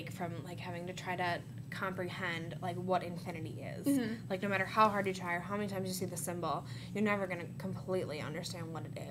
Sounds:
inside a small room, speech

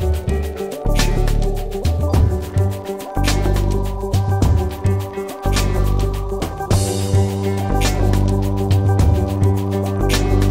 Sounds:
music

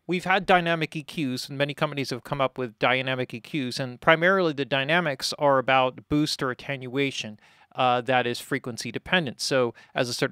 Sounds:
speech

